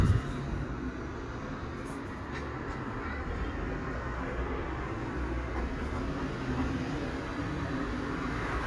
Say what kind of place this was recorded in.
residential area